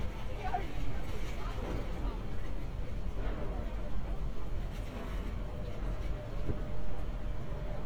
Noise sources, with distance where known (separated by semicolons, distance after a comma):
engine of unclear size